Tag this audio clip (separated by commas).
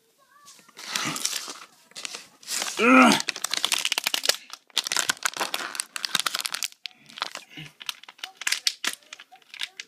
inside a small room, Speech